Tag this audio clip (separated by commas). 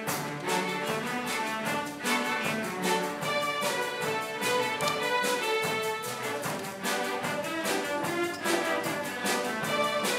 Music, Orchestra